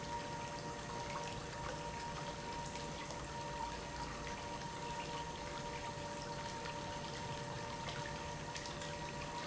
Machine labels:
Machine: pump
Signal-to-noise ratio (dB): 0 dB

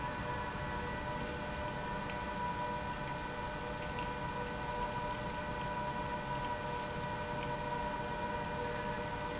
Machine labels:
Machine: pump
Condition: abnormal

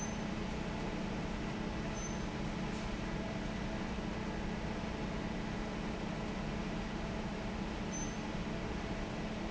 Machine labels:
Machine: fan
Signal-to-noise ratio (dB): -6 dB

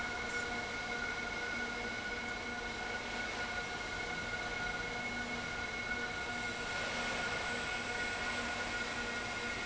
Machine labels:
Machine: fan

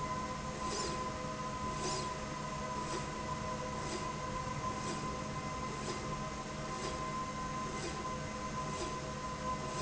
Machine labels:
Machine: slide rail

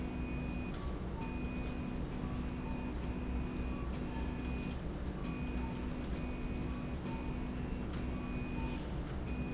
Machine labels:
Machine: slide rail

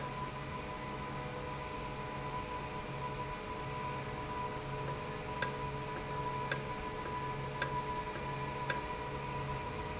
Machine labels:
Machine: valve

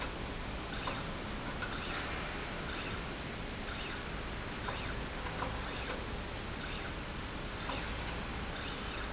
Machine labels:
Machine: slide rail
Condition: normal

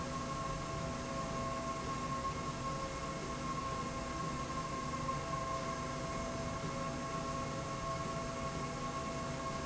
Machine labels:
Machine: slide rail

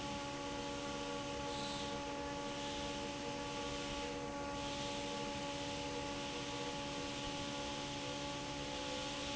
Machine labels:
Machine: fan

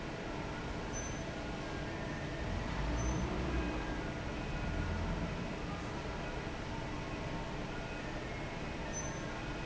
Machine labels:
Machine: fan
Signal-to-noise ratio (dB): -6 dB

